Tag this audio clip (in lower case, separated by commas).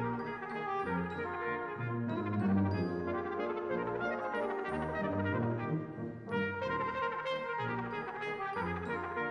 playing cornet